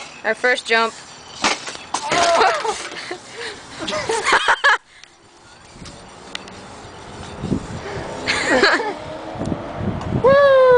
A girl speaks followed by something crashing as she and her friends laughed and it ends as a vehicle slowly but loudly approaches